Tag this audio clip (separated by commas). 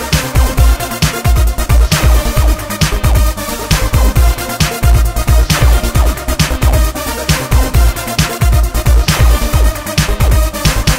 Music